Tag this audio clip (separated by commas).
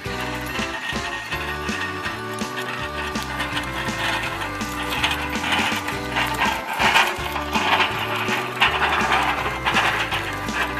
Clip-clop, Music